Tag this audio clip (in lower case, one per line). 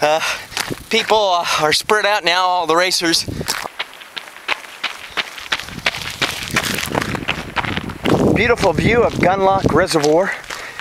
speech
footsteps
run